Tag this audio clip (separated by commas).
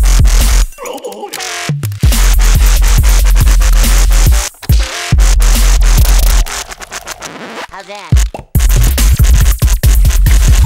Speech, Dubstep, Music, Drum machine